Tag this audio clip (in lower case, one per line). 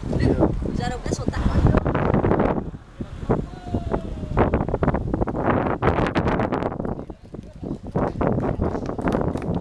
wind noise (microphone)
wind